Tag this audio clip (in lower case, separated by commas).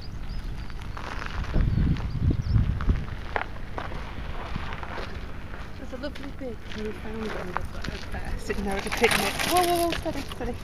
speech